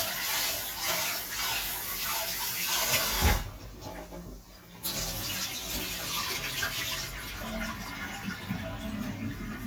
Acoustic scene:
kitchen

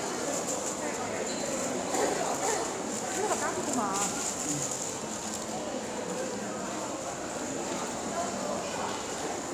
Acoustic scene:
crowded indoor space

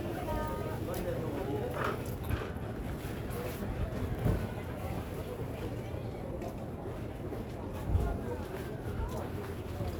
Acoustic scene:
crowded indoor space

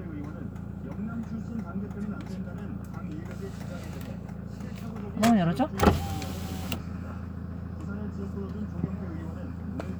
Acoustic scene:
car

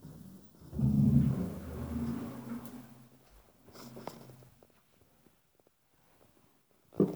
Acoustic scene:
elevator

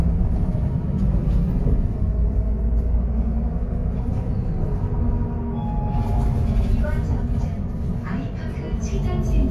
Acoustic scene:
bus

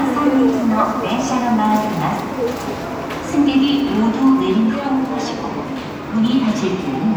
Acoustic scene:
subway station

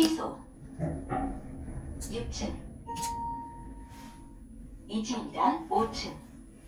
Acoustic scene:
elevator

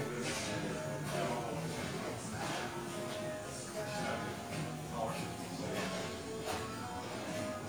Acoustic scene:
cafe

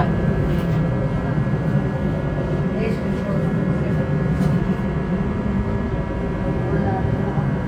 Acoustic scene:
subway train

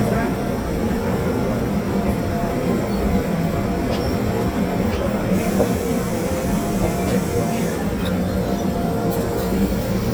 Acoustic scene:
subway train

